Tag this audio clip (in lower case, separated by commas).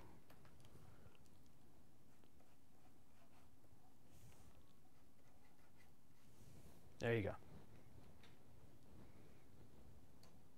speech, silence